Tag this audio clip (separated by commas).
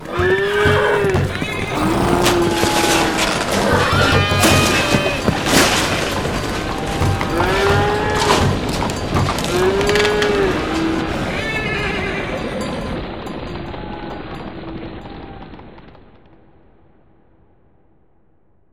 Animal, livestock, Bell